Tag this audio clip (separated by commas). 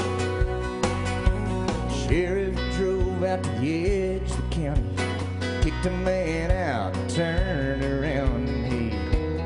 Music